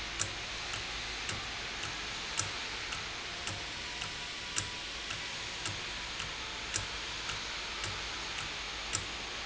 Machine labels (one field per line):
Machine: valve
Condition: normal